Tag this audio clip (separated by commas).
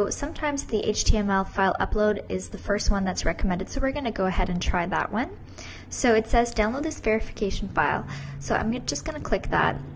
Speech